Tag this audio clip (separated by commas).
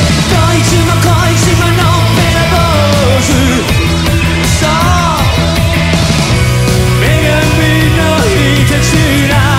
Music